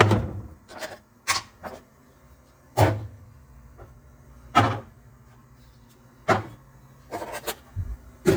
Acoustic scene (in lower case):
kitchen